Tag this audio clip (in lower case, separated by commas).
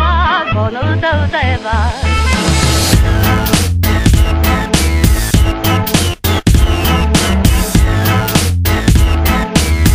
swing music, music, electronic music, house music